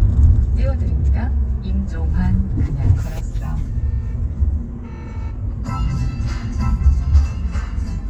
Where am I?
in a car